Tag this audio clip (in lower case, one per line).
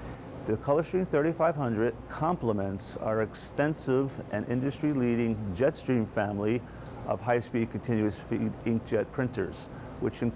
speech